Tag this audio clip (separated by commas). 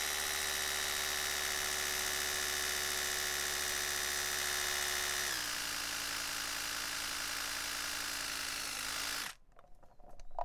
home sounds